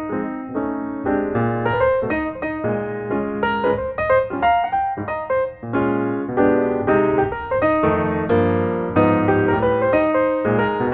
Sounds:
music

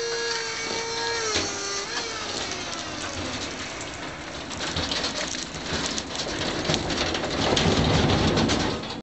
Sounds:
vehicle

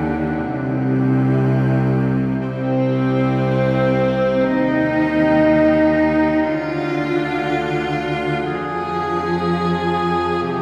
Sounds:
musical instrument
cello
music
playing cello
tender music

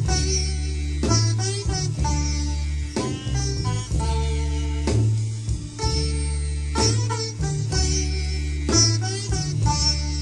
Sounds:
music

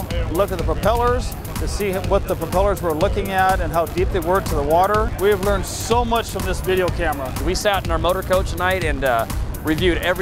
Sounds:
music
speech

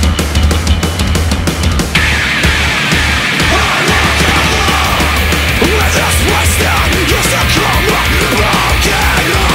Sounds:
music

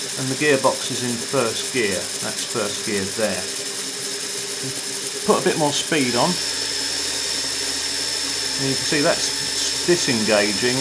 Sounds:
ratchet
mechanisms
gears

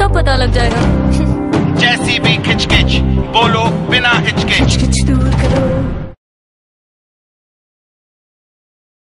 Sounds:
speech
music

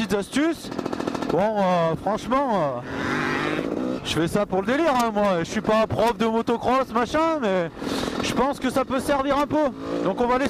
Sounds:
speech

